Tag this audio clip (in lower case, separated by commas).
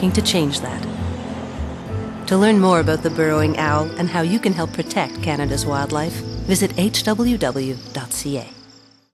speech, music